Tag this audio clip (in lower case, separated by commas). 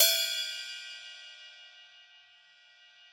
cymbal, music, percussion, musical instrument, hi-hat